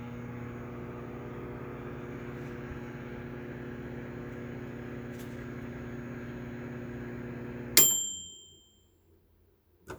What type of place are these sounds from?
kitchen